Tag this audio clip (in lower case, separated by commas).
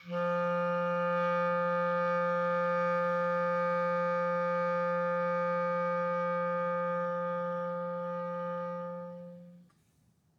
musical instrument, music, woodwind instrument